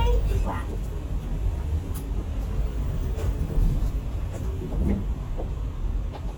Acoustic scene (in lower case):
bus